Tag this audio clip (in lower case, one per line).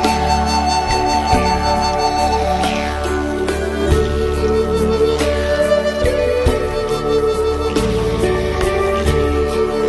new-age music